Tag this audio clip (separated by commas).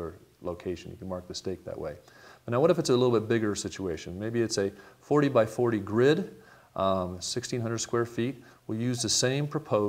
Speech